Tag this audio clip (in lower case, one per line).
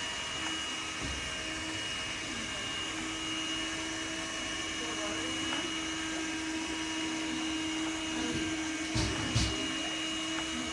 vacuum cleaner cleaning floors